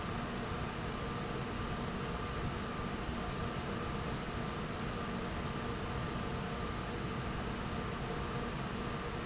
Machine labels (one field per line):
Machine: fan